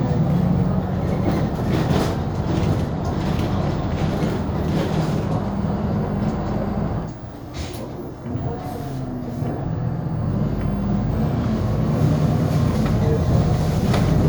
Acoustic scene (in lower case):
bus